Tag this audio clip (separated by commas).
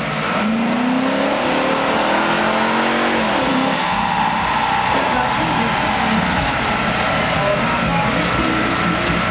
Music, Vehicle, Car